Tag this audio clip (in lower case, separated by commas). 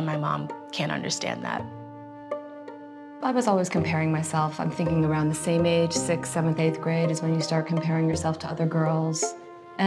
speech, music